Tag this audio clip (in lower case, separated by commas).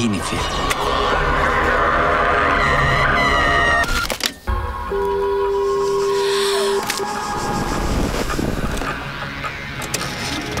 speech, music, sound effect